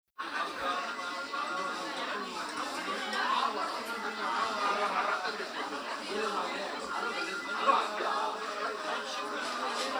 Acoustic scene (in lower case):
restaurant